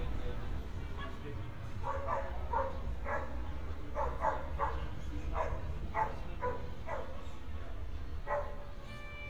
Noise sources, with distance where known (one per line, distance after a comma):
dog barking or whining, near